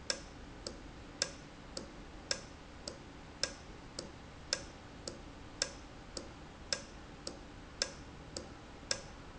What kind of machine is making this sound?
valve